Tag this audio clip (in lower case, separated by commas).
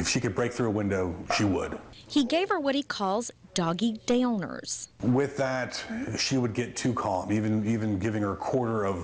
speech